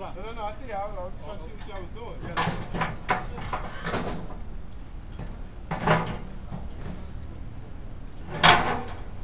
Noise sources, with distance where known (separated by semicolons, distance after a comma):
person or small group talking, near